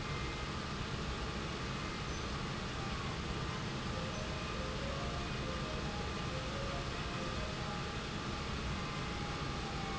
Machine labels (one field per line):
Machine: pump